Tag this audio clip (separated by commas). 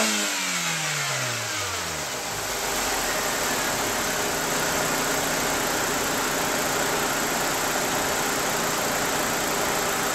vroom, Vehicle, Car